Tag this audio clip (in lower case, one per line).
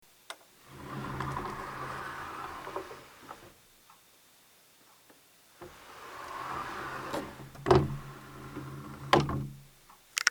door
sliding door
domestic sounds